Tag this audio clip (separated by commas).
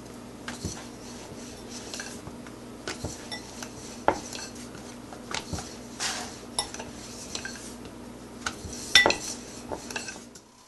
inside a small room